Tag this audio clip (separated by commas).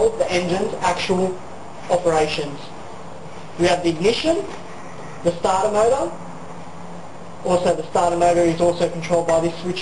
Speech